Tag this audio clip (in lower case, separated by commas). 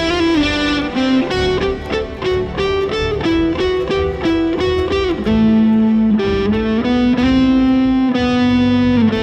electric guitar, music, guitar, musical instrument, strum, plucked string instrument